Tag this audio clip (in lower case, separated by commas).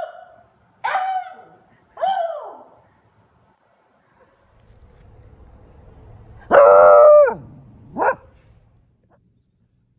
dog baying